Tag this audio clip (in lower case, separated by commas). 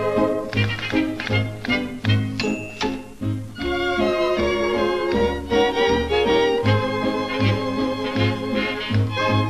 music, orchestra